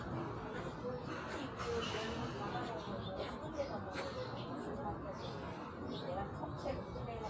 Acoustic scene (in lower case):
park